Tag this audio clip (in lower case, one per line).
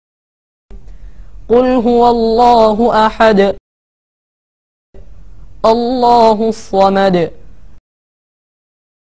speech